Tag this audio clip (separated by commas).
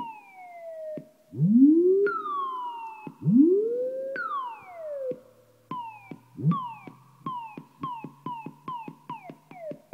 Effects unit